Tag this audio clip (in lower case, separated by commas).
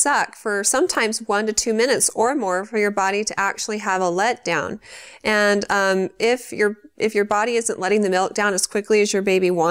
speech